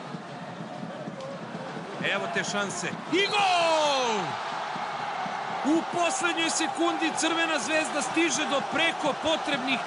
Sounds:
speech

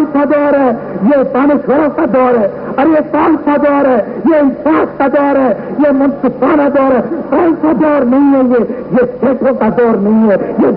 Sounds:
monologue
man speaking
speech

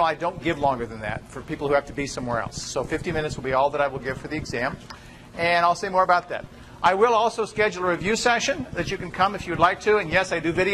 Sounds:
speech

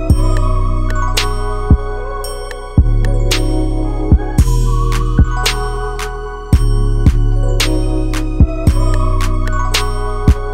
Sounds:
music

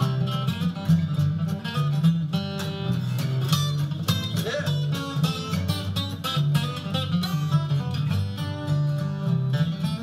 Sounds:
music
soundtrack music
happy music

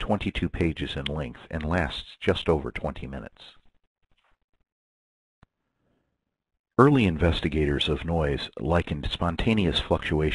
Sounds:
speech

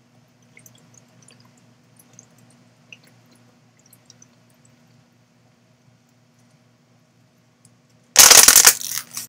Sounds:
stream

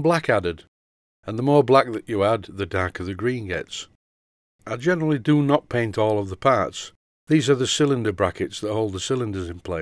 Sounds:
speech

